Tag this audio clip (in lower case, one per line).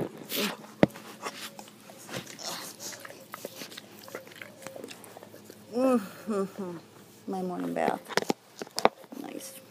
speech
canids
dog
domestic animals
animal